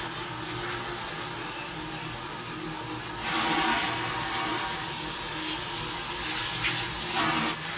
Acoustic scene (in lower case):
restroom